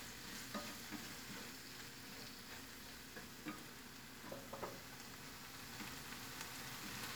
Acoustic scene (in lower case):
kitchen